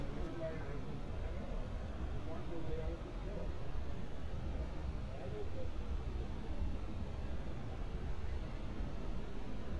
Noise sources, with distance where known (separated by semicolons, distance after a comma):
person or small group talking, far